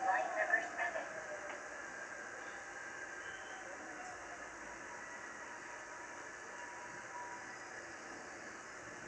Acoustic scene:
subway train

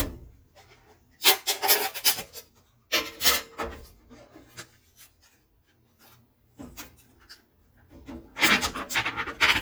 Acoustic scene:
kitchen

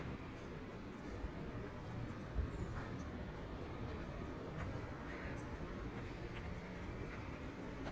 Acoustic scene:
residential area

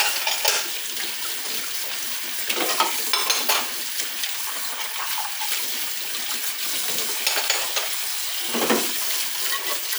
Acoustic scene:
kitchen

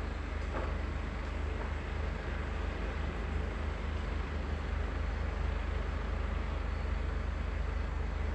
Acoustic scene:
residential area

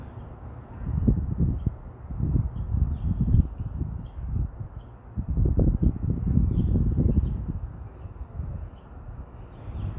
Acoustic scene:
street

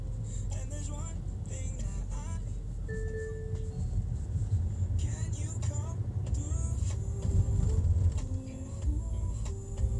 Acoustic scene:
car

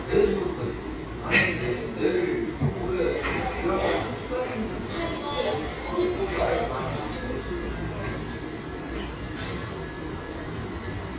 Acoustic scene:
cafe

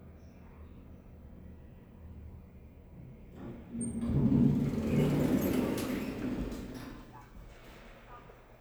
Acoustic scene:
elevator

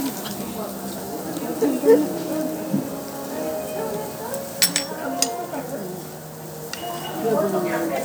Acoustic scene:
restaurant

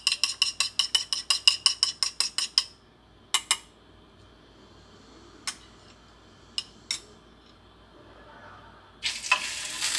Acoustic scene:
kitchen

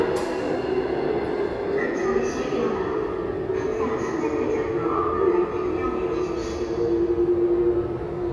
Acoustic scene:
subway station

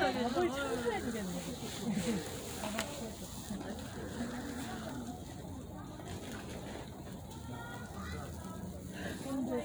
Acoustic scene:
residential area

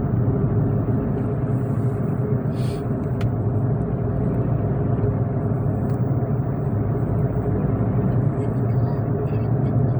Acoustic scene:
car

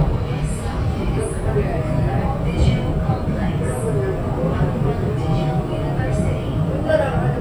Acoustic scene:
subway train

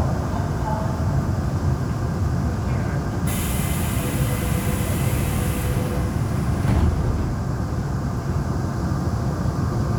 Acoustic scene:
subway train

